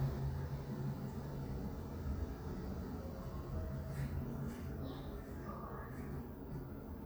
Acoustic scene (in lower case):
elevator